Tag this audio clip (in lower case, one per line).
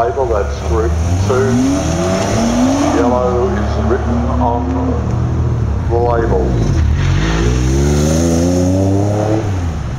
car
speech
accelerating
vehicle